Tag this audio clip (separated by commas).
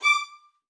Music, Musical instrument, Bowed string instrument